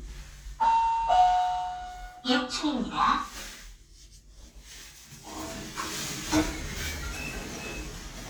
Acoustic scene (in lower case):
elevator